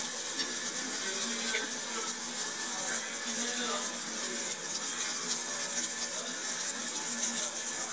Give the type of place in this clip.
restaurant